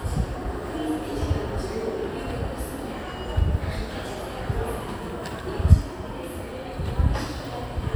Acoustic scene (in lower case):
crowded indoor space